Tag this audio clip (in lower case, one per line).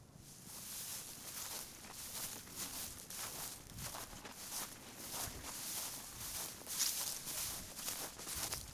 walk